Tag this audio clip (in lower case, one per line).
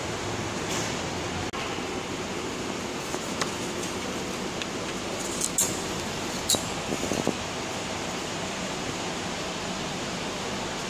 inside a large room or hall